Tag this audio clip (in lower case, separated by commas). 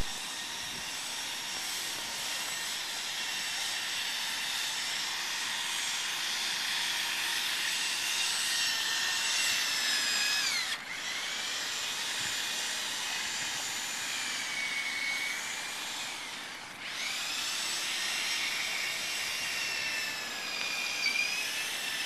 sawing, tools